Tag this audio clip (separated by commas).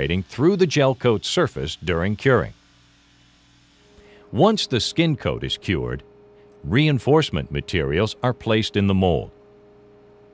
Speech